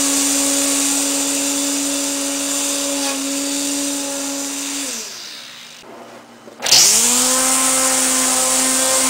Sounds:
lawn mower

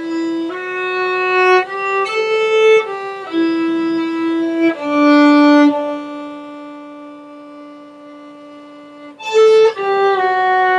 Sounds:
musical instrument, music, fiddle

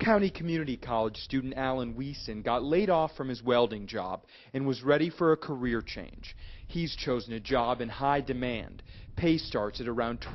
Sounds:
speech

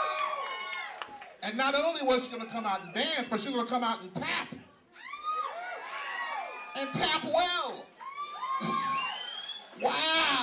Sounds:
cheering, crowd

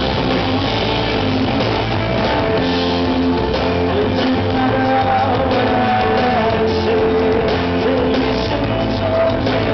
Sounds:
music

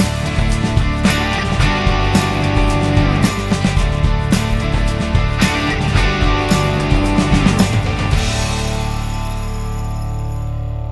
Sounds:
music

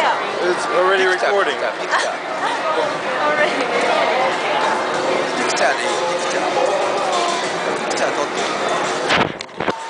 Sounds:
speech

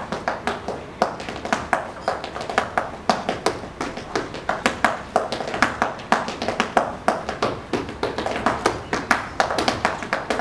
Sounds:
inside a public space

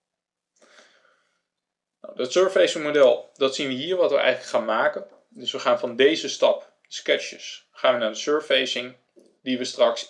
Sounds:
speech

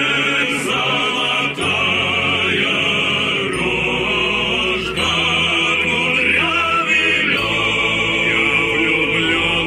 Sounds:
rhythm and blues, music

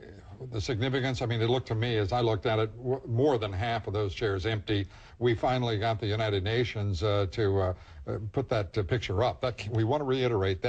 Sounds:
man speaking, speech

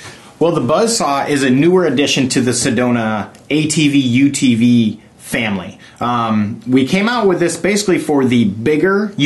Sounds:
speech

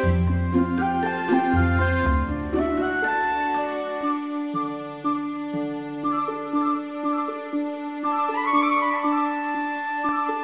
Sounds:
music

